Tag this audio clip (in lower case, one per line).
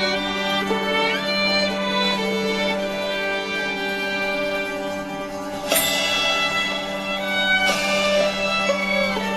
music